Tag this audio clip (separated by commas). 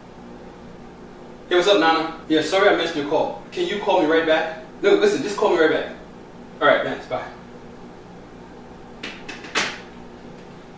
Speech